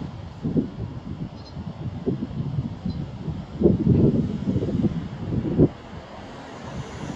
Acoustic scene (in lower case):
street